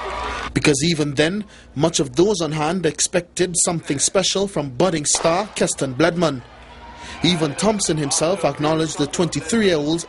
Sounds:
speech
outside, urban or man-made
inside a public space

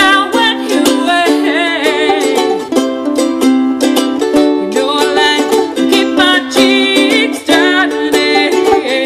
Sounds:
music
ukulele
mandolin

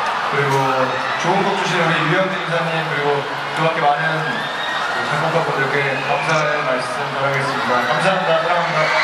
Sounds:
speech

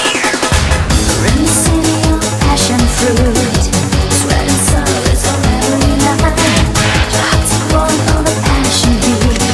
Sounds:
music

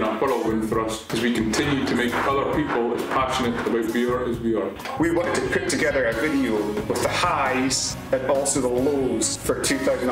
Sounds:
speech
man speaking
narration

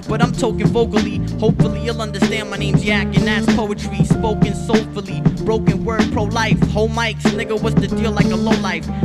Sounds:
music

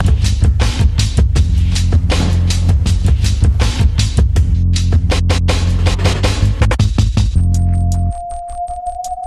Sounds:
music

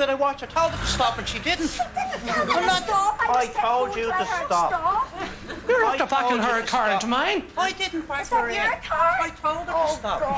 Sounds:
speech
car
vehicle

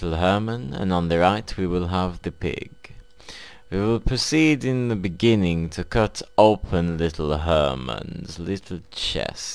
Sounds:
speech

